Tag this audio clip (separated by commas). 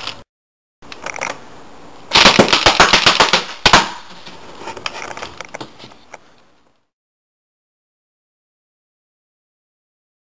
machine gun shooting